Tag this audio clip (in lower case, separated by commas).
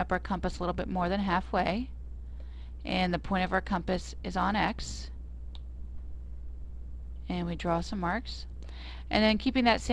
speech